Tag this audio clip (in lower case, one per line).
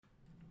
drawer open or close
home sounds